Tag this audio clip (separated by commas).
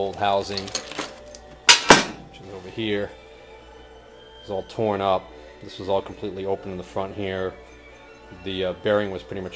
Speech, Music